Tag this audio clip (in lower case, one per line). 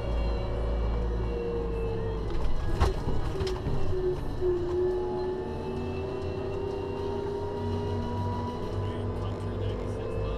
speech